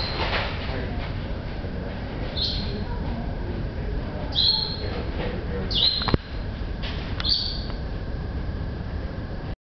Rustling followed by a bird chirping lightly